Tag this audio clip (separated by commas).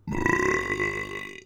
Burping